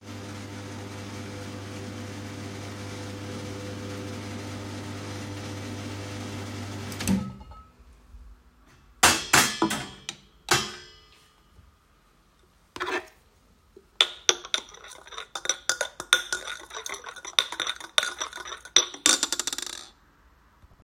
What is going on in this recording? The coffee machine was running, and I turned it off when it finished.I grabbed the glass from the Coffee machine and grabbed a spoon from the counter to stir the coffee.